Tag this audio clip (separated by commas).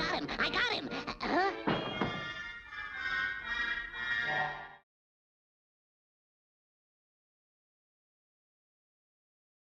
Music, Speech